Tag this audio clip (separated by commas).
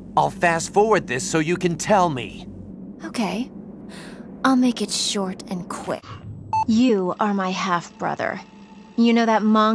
woman speaking, Speech synthesizer, man speaking, Conversation, Speech